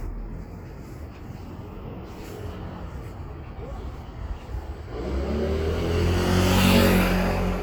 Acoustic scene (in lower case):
street